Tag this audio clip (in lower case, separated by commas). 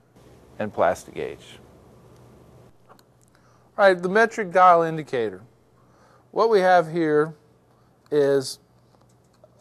speech